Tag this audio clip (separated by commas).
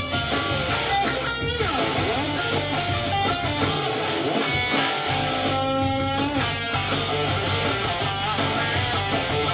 Guitar, Music, Electric guitar, Plucked string instrument, Musical instrument, Strum